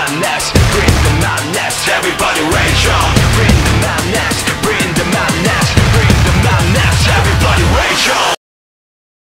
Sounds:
Music

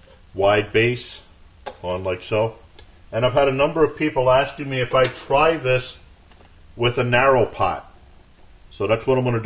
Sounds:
Speech

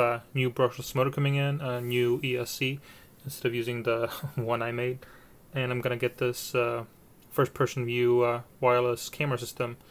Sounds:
Speech

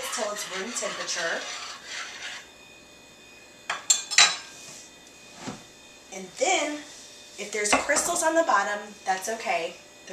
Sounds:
Speech

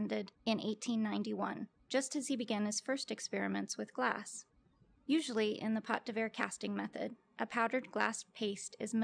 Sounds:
Speech

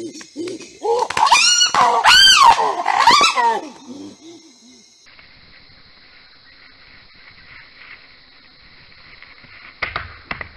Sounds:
chimpanzee pant-hooting

